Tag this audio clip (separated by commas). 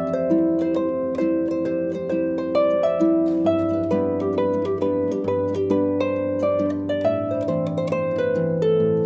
Music, Musical instrument